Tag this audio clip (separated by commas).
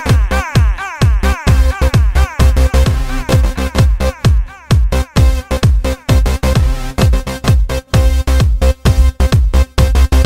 Music